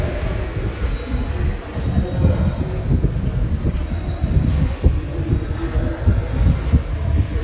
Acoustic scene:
subway station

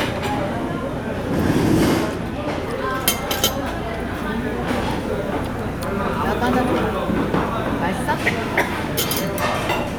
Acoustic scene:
crowded indoor space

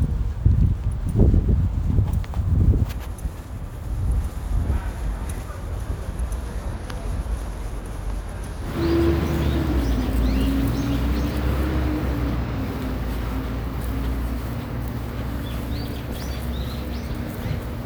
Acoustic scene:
residential area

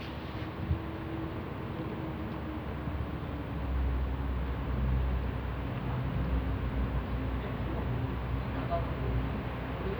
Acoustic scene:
residential area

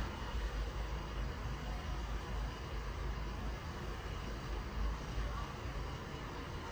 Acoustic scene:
residential area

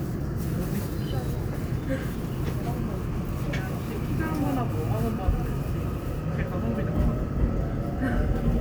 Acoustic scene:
subway train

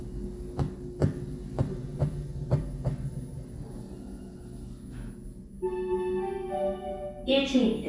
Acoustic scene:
elevator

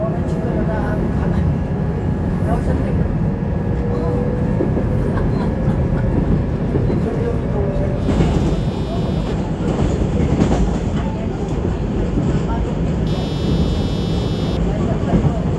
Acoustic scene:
subway train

